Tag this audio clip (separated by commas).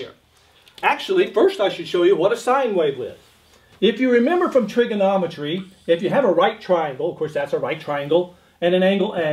Speech